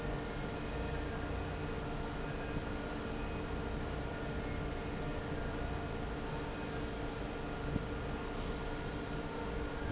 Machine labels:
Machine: fan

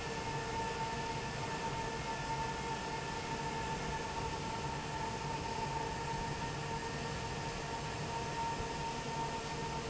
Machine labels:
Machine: fan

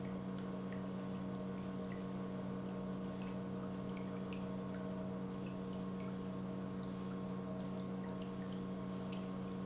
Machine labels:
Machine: pump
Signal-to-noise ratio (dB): 6 dB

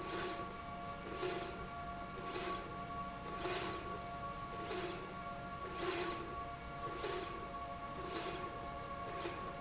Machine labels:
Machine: slide rail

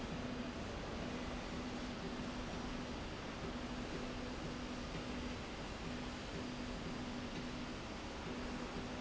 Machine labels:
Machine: slide rail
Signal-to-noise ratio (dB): 0 dB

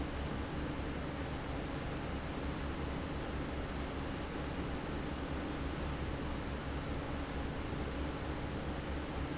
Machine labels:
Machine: fan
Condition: normal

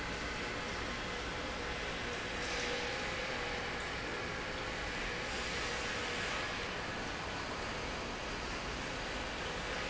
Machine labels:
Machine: pump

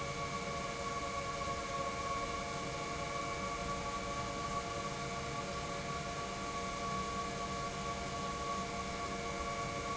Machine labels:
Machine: pump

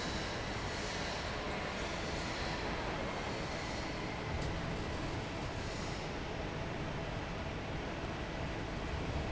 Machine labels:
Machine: fan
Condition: normal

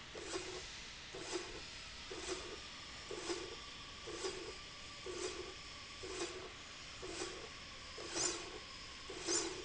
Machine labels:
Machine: slide rail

